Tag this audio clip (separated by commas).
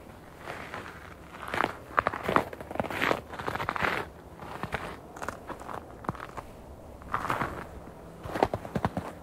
footsteps, Rustle, Crackle